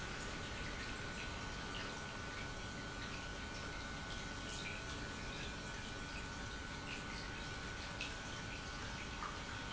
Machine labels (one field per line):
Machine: pump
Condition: normal